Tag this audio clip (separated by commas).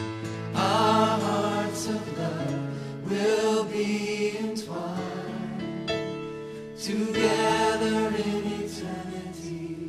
Music